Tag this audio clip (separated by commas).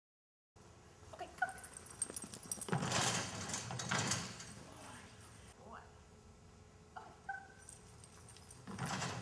inside a large room or hall